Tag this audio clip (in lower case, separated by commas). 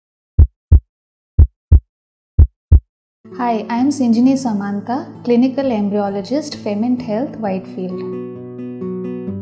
music, speech